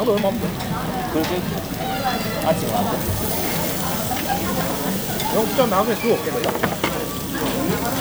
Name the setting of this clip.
restaurant